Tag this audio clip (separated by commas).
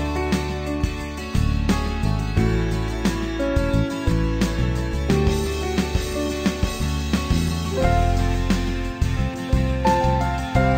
Music